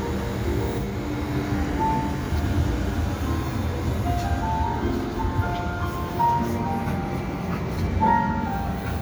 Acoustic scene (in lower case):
street